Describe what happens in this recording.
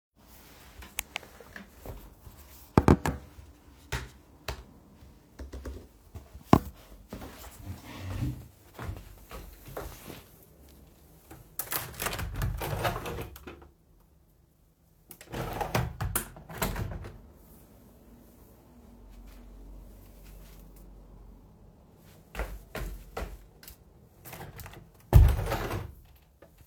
I'm typing on the keyboard. Then I walk to the window and open it and close it afterwards.